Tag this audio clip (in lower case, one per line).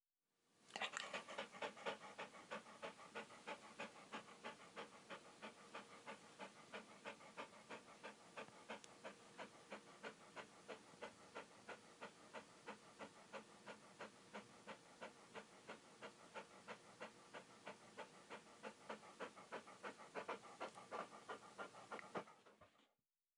pets
dog
animal